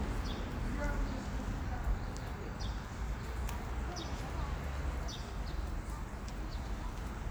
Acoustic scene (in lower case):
residential area